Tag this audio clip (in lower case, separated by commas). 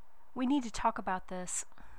woman speaking, human voice, speech